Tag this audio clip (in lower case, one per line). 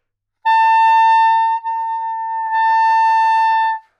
music
woodwind instrument
musical instrument